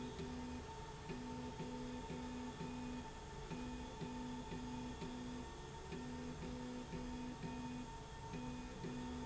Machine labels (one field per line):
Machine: slide rail